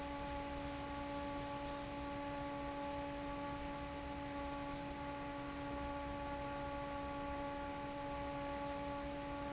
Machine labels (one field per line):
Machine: fan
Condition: normal